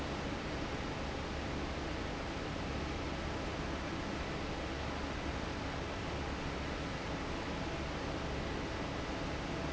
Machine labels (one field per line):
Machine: fan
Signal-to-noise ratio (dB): -6 dB